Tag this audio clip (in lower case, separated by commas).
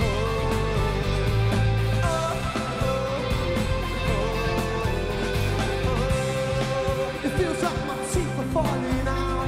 music